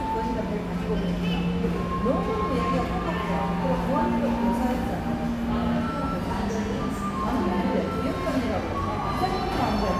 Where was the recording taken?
in a cafe